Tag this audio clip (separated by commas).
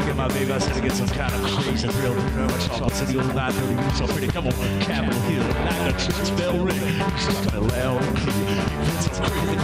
Music, Blues